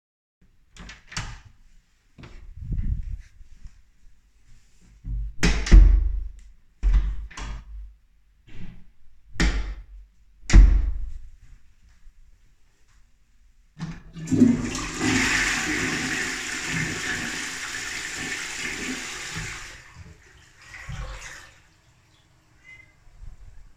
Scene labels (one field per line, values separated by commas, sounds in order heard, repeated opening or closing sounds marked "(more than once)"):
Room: bathroom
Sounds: door, toilet flushing